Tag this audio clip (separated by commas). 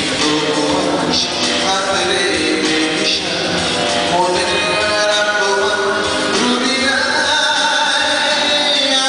Male singing, Music